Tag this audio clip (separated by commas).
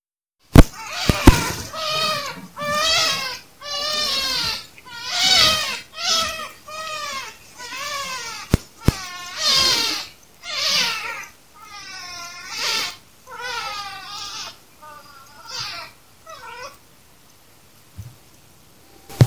Wild animals, Animal, Bird